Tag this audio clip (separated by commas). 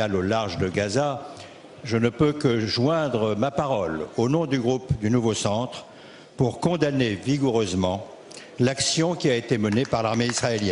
Speech